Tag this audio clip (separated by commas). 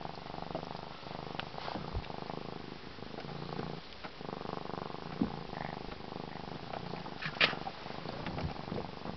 Purr, cat purring